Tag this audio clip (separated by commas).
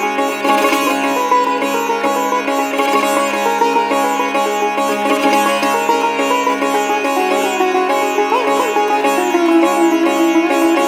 playing sitar